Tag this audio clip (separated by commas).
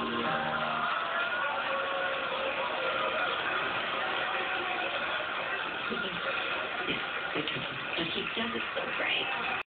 Speech